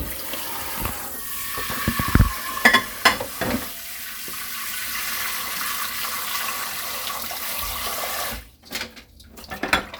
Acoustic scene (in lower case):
kitchen